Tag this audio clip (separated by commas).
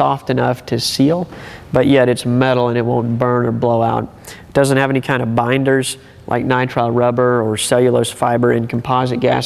Speech